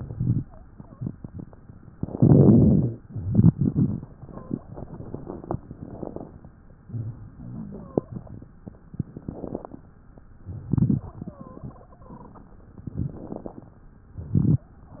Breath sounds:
0.00-0.43 s: crackles
0.69-1.49 s: wheeze
1.91-2.97 s: crackles
1.92-3.02 s: inhalation
3.05-4.16 s: exhalation
3.10-4.17 s: crackles
3.14-5.61 s: exhalation
4.18-4.76 s: wheeze
5.63-6.58 s: inhalation
5.63-6.58 s: crackles
6.81-9.82 s: exhalation
7.33-7.95 s: wheeze
8.89-9.80 s: crackles
10.43-11.19 s: crackles
10.45-11.21 s: inhalation
11.24-12.85 s: exhalation
11.24-12.85 s: wheeze
12.94-13.66 s: inhalation
12.94-13.69 s: crackles
14.12-14.70 s: exhalation
14.12-14.70 s: crackles

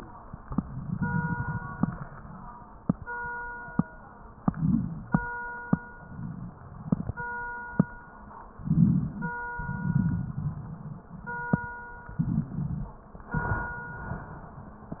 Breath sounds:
0.49-1.77 s: crackles
4.46-5.18 s: inhalation
4.46-5.18 s: crackles
5.92-7.31 s: exhalation
5.92-7.31 s: crackles
8.63-9.36 s: inhalation
8.63-9.36 s: crackles
9.54-11.10 s: exhalation
9.54-11.10 s: crackles
12.12-13.00 s: inhalation
12.12-13.00 s: crackles

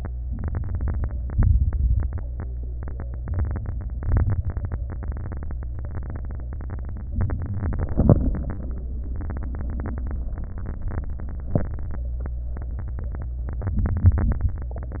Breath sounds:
0.25-1.14 s: inhalation
0.25-1.14 s: crackles
1.28-2.16 s: exhalation
1.28-2.16 s: crackles
3.19-3.99 s: inhalation
3.19-3.99 s: crackles
4.08-4.87 s: exhalation
4.08-4.87 s: crackles
7.15-7.94 s: inhalation
7.15-7.94 s: crackles
7.96-8.76 s: exhalation
7.96-8.76 s: crackles
13.79-14.44 s: inhalation
13.79-14.44 s: crackles

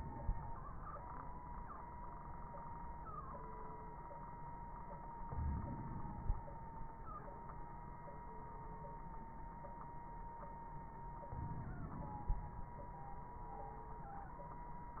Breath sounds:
5.27-6.40 s: inhalation
5.27-6.40 s: crackles
11.32-12.46 s: inhalation
11.32-12.46 s: crackles

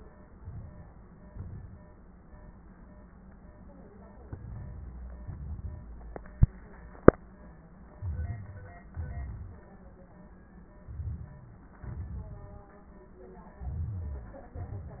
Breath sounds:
0.38-0.89 s: inhalation
1.27-1.78 s: exhalation
4.35-4.93 s: inhalation
5.26-5.84 s: exhalation
8.01-8.79 s: inhalation
8.01-8.79 s: rhonchi
8.94-9.71 s: exhalation
8.96-9.74 s: rhonchi
10.84-11.64 s: rhonchi
10.87-11.65 s: inhalation
11.88-12.66 s: exhalation
13.59-14.50 s: inhalation
13.61-14.51 s: rhonchi
14.59-15.00 s: exhalation

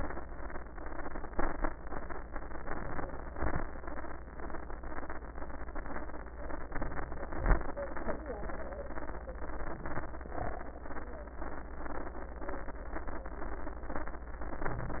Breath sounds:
2.62-3.15 s: inhalation
3.29-3.67 s: exhalation
6.72-7.25 s: inhalation
7.32-7.70 s: exhalation
14.63-15.00 s: inhalation

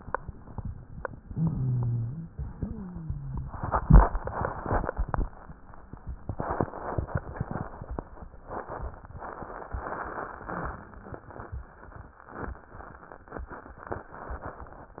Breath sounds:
1.23-2.33 s: inhalation
1.23-2.33 s: wheeze
2.45-3.56 s: wheeze

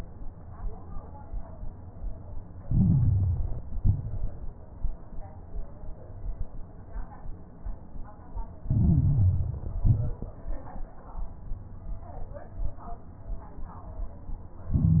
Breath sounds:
2.62-3.74 s: inhalation
2.62-3.74 s: crackles
3.76-4.28 s: exhalation
3.76-4.28 s: crackles
8.66-9.78 s: inhalation
8.66-9.78 s: crackles
9.86-10.21 s: exhalation
9.86-10.21 s: crackles
14.73-15.00 s: inhalation
14.73-15.00 s: crackles

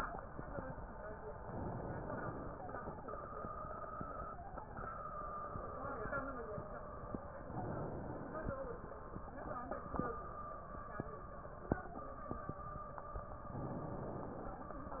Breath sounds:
1.32-2.56 s: inhalation
7.37-8.61 s: inhalation
13.48-14.72 s: inhalation

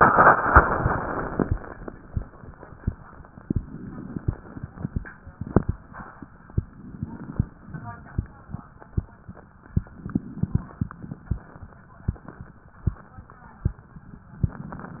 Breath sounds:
3.46-4.68 s: inhalation
6.63-7.49 s: inhalation
9.85-10.71 s: inhalation
10.73-11.59 s: exhalation
14.36-15.00 s: inhalation

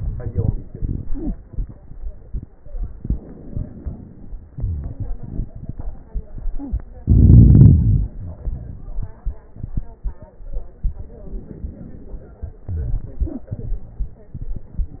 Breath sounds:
3.00-4.55 s: inhalation
3.00-4.55 s: crackles
4.53-6.78 s: exhalation
11.28-12.60 s: inhalation
12.67-15.00 s: exhalation

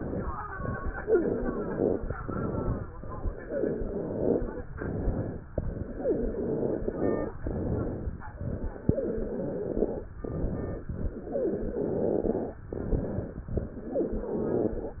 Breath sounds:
0.95-2.10 s: wheeze
1.04-2.11 s: exhalation
2.20-2.89 s: inhalation
3.45-4.60 s: wheeze
4.76-5.45 s: inhalation
5.54-7.35 s: exhalation
5.94-7.32 s: wheeze
7.42-8.22 s: inhalation
8.39-10.12 s: exhalation
8.86-10.12 s: wheeze
10.23-10.91 s: inhalation
10.93-12.57 s: exhalation
11.31-12.57 s: wheeze
12.77-13.45 s: inhalation
13.53-15.00 s: exhalation
13.53-15.00 s: exhalation
13.55-14.81 s: wheeze

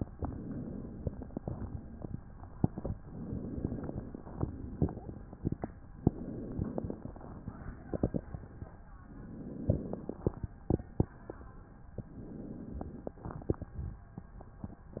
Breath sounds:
0.00-1.23 s: inhalation
1.22-2.38 s: exhalation
2.93-4.26 s: inhalation
4.28-5.79 s: exhalation
5.94-7.36 s: inhalation
7.36-8.82 s: exhalation
8.92-10.71 s: inhalation
10.73-11.88 s: exhalation
11.93-13.20 s: inhalation
13.20-14.36 s: exhalation

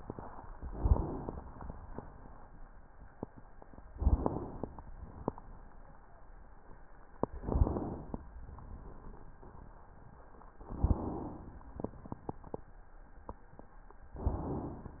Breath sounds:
0.53-1.42 s: inhalation
3.94-4.83 s: inhalation
3.94-4.83 s: crackles
4.90-6.04 s: exhalation
7.39-8.27 s: inhalation
7.39-8.27 s: crackles
8.38-9.84 s: exhalation
10.65-11.60 s: inhalation
11.60-12.67 s: exhalation
11.60-12.67 s: crackles

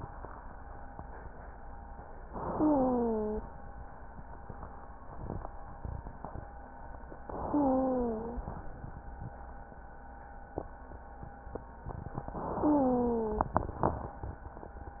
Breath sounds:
2.28-3.45 s: inhalation
2.48-3.45 s: wheeze
7.32-8.51 s: inhalation
7.46-8.51 s: wheeze
12.40-13.61 s: inhalation
12.60-13.55 s: wheeze

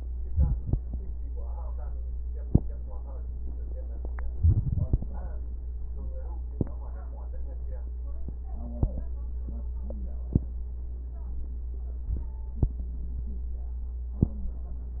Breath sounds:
0.26-0.86 s: inhalation
0.26-0.86 s: crackles
4.36-5.08 s: inhalation
4.36-5.08 s: wheeze

